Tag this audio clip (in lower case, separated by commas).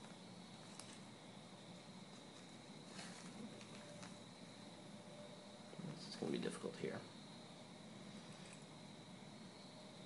speech, inside a small room